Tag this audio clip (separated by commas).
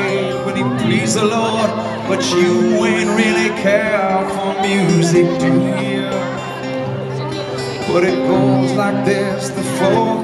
Speech, Music